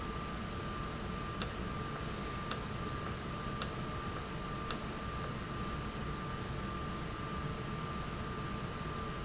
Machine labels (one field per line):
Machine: valve